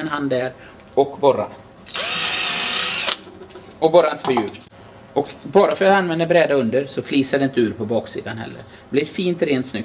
A man speaking and using some kind of tool such as a drill or electric screwdriver